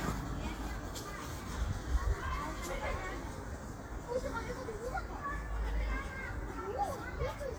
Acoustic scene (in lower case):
park